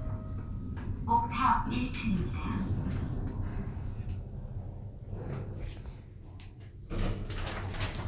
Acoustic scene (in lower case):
elevator